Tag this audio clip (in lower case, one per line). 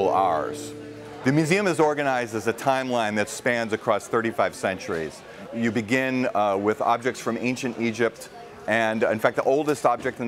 music
speech